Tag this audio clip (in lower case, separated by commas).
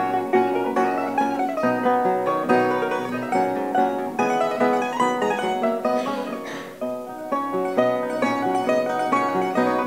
mandolin, musical instrument, plucked string instrument, music